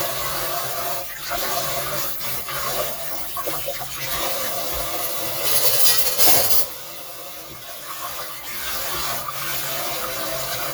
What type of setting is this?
kitchen